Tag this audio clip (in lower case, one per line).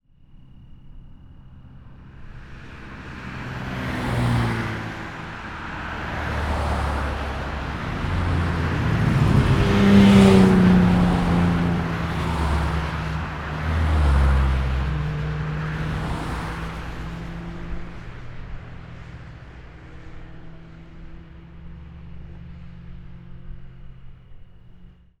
car
truck
car passing by
motor vehicle (road)
vehicle